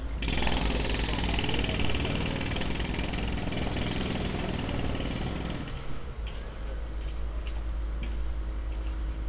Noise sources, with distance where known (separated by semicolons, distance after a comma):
jackhammer, near